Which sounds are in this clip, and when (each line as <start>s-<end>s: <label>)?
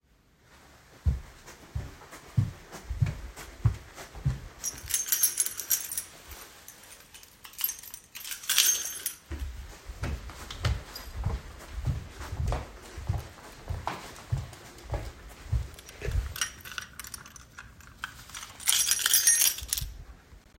1.0s-4.5s: footsteps
4.6s-9.5s: keys
9.8s-16.1s: footsteps
16.0s-20.1s: keys